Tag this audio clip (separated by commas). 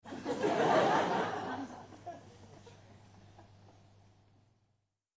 Crowd, Human voice, Laughter, Human group actions